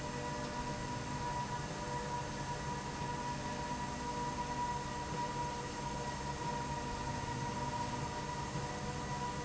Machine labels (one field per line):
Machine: slide rail